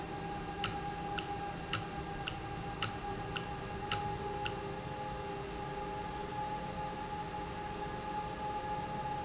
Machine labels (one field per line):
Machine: valve